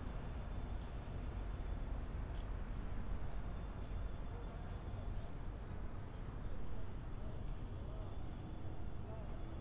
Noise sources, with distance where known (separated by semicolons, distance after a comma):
background noise